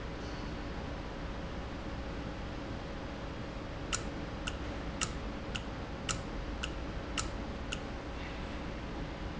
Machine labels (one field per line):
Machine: valve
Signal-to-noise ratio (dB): -6 dB